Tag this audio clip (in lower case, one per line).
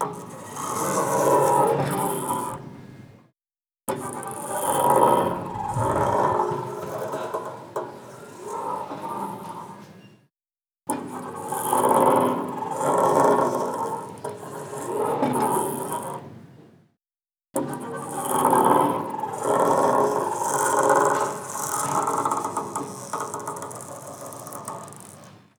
door
sliding door
home sounds